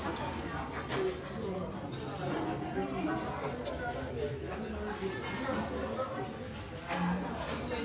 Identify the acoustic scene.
restaurant